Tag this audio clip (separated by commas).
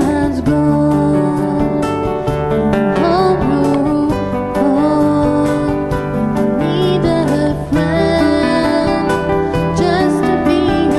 Music, Soul music